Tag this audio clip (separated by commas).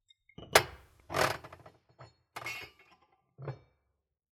Chink, Glass